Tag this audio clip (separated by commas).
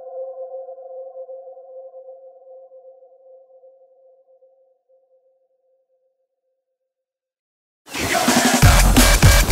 Music